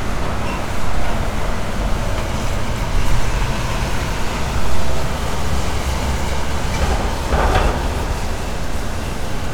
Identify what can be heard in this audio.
non-machinery impact